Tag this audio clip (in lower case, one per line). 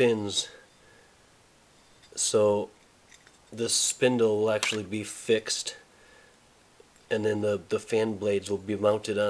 speech